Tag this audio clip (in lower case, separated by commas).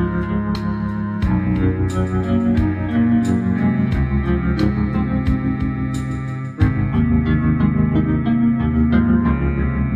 ambient music, music